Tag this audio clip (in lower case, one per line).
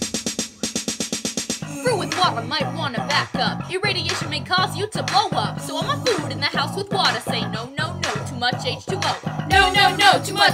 music
hip hop music
wood block